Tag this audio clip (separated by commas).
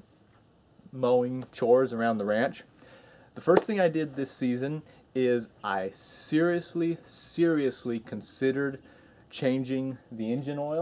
Speech